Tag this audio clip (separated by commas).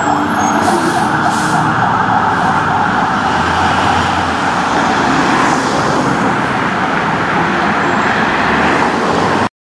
Emergency vehicle, Siren, Vehicle, Motor vehicle (road)